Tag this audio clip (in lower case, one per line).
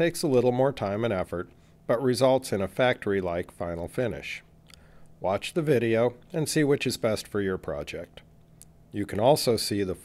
speech